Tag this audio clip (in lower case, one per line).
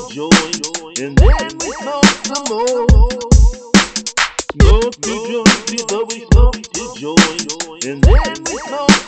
music
dubstep
electronic music